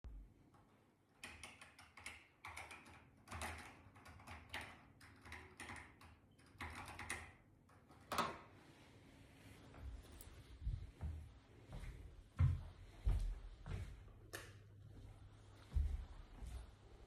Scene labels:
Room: office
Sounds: keyboard typing, footsteps, light switch

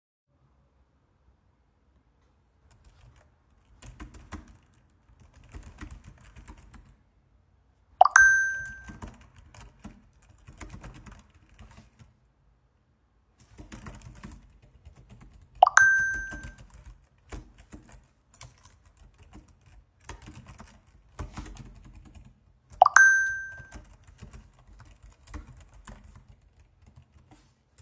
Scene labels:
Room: office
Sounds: keyboard typing, phone ringing

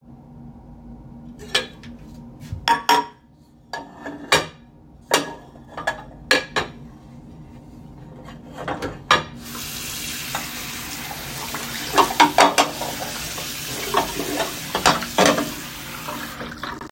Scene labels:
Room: kitchen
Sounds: cutlery and dishes, running water

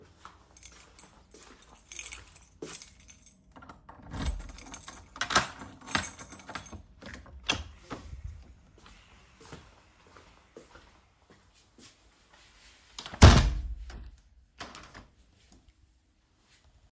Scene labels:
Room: living room, bedroom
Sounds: footsteps, keys, door, window

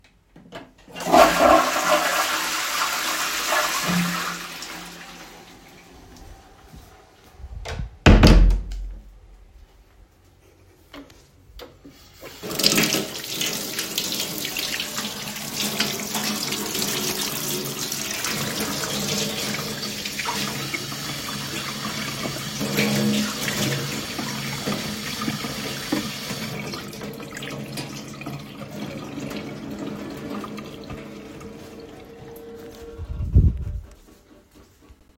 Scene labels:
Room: lavatory, bathroom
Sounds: toilet flushing, door, running water

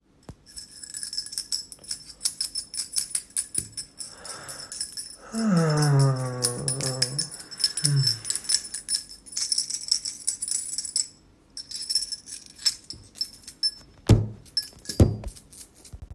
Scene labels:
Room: living room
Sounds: keys

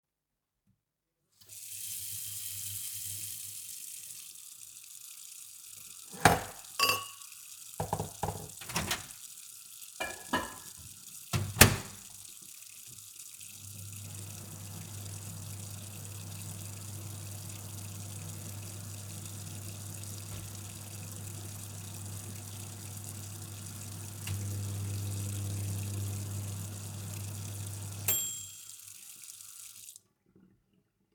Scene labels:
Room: kitchen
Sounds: running water, cutlery and dishes, microwave

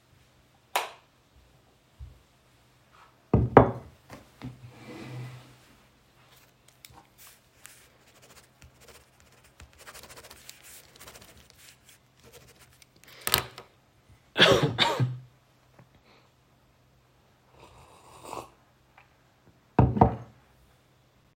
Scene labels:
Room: living room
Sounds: light switch, footsteps, cutlery and dishes

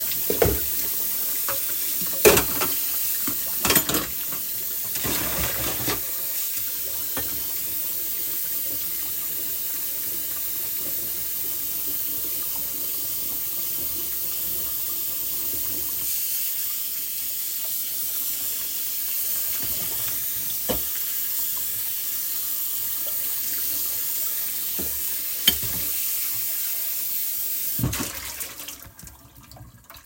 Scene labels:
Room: kitchen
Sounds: running water, cutlery and dishes

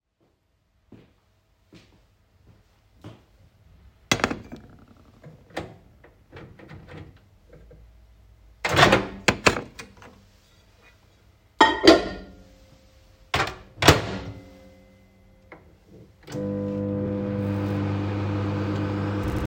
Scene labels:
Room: kitchen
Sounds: footsteps, cutlery and dishes, microwave

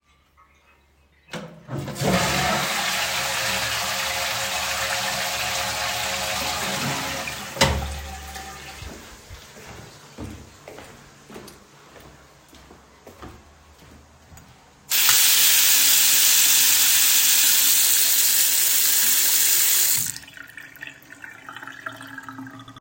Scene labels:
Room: bathroom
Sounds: toilet flushing, running water

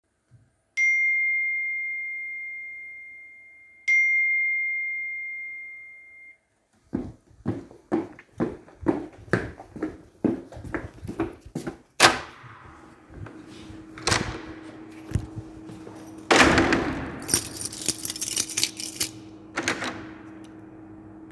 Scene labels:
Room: bedroom, hallway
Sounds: phone ringing, footsteps, door (more than once), keys

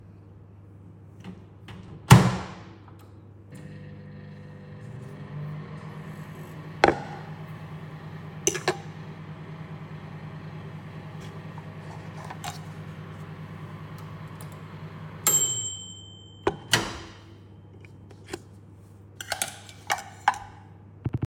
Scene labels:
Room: kitchen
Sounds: microwave, cutlery and dishes

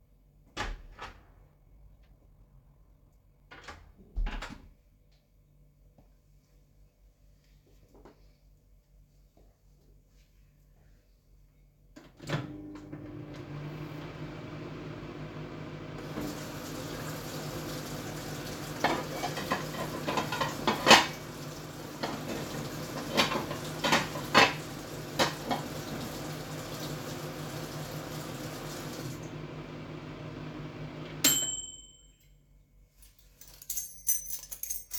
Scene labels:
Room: kitchen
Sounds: door (more than once), microwave, running water, cutlery and dishes, keys

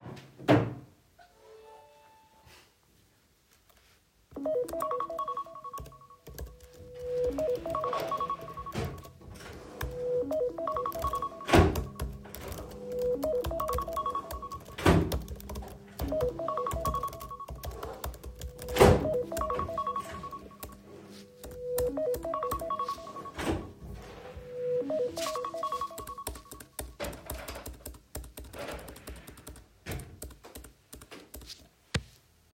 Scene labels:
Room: kitchen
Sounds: wardrobe or drawer (more than once), keyboard typing, phone ringing

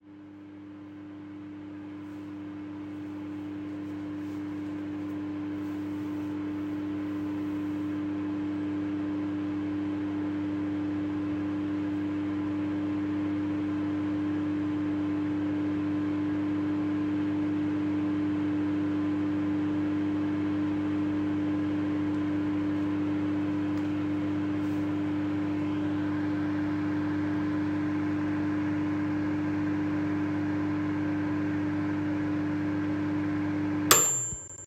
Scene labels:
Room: kitchen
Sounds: microwave

